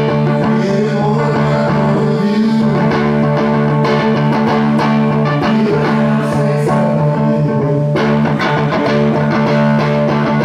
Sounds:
music

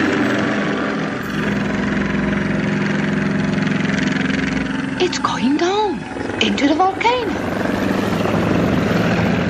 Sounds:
helicopter, music, speech

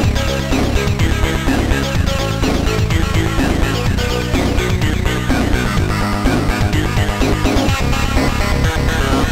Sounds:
music, trance music

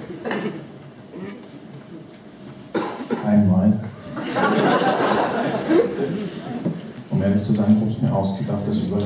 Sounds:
speech

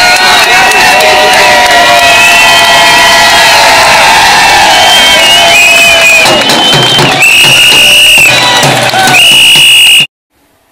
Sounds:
music, outside, urban or man-made, speech

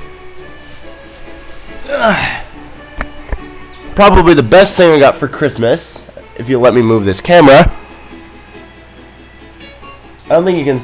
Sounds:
speech, music

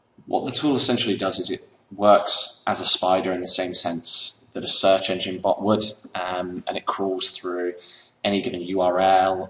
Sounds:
speech

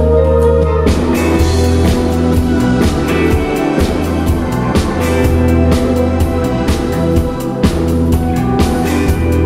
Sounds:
music

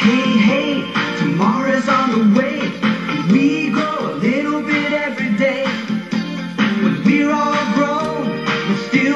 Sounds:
music

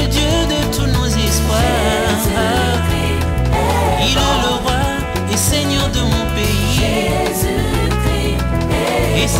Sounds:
music, salsa music

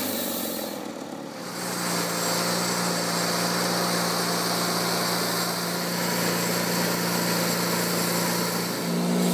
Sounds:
sawing, wood

